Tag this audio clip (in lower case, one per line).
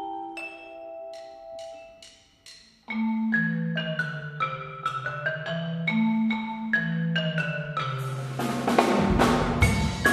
music
steelpan